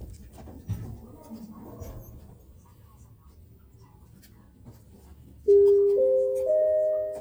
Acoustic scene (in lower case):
elevator